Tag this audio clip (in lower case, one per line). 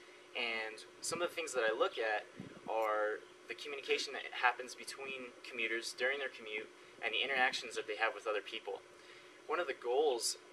speech